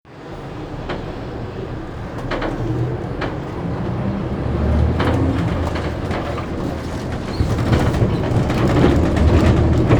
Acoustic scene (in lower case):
bus